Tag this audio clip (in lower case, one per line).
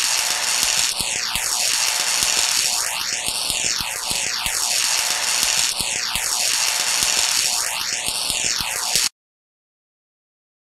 outside, rural or natural